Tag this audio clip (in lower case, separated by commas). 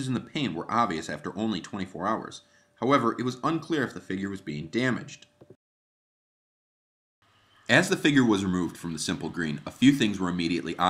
speech